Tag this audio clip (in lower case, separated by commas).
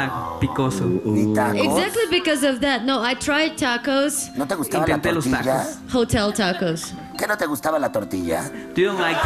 music, laughter, speech